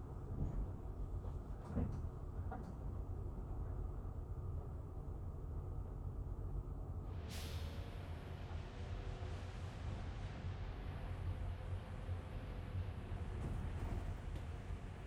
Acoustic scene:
bus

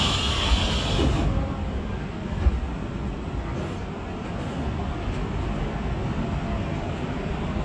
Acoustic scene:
subway train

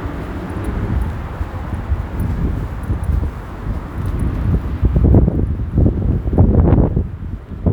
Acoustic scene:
residential area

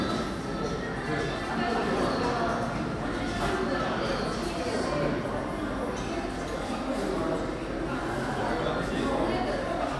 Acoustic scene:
cafe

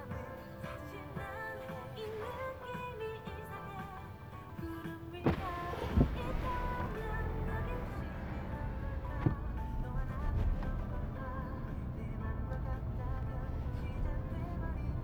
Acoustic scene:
car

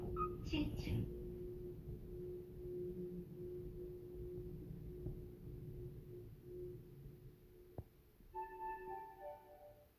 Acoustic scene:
elevator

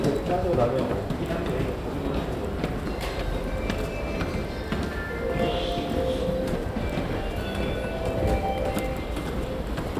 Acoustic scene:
subway station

